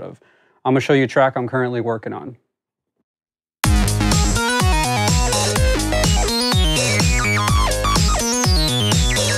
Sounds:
Music, Speech

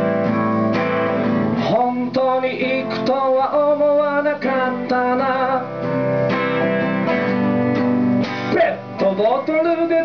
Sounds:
Strum, Music, Electric guitar, Acoustic guitar, Musical instrument, Guitar

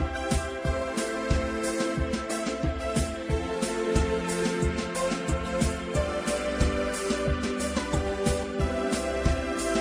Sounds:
Music

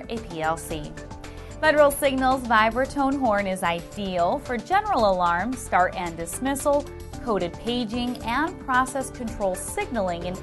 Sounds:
Music, Speech

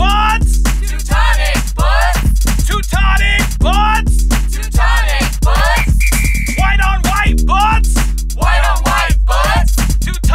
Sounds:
Music

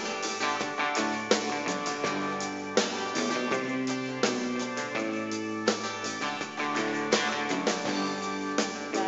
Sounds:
Music

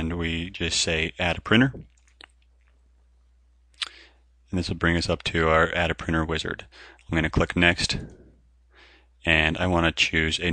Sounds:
Speech

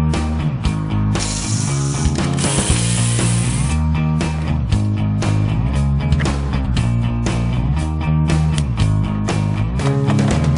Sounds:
Music

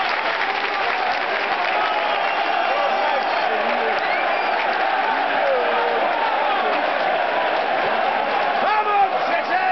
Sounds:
Speech

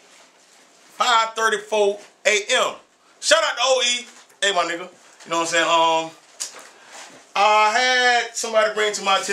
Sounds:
Speech

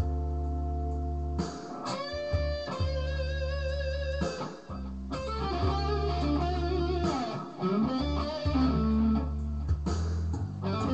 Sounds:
Music, Guitar, Musical instrument, Plucked string instrument, Tapping (guitar technique), Blues

